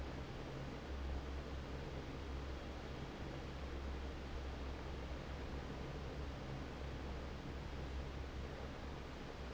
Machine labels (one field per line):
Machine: fan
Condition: normal